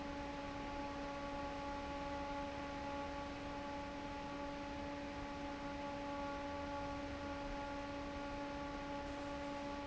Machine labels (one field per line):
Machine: fan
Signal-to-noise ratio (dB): 6 dB